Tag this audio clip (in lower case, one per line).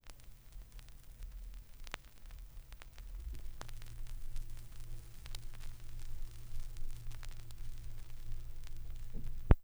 crackle